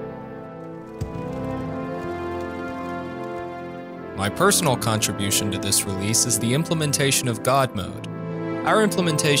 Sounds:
music
speech

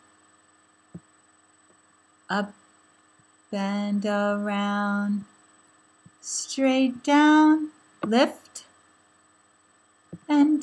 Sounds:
speech

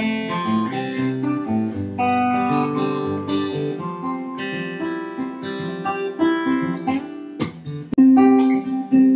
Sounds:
music
ukulele

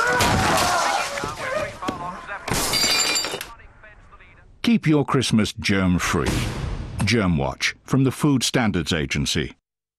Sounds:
speech

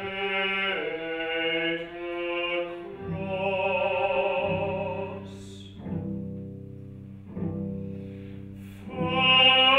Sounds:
bowed string instrument
singing
opera
musical instrument
music
violin
double bass

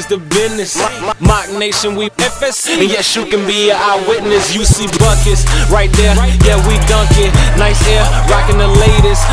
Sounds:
music
rapping

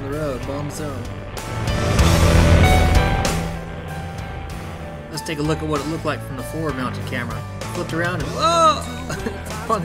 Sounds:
speech
music

